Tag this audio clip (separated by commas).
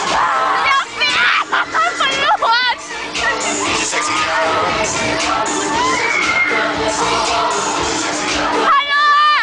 Speech, Music